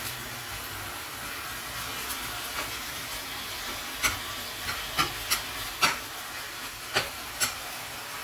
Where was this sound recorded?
in a kitchen